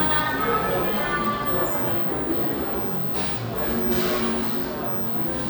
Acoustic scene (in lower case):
cafe